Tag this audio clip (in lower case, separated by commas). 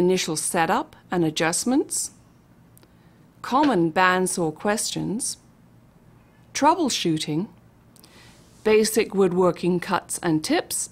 speech